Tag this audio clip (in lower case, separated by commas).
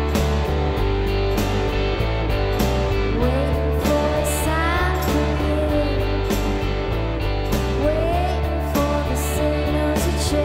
music, rhythm and blues